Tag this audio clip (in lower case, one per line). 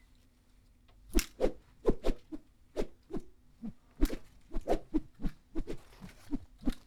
swish